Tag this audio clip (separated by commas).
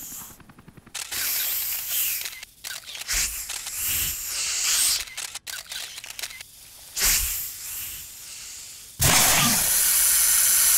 snake hissing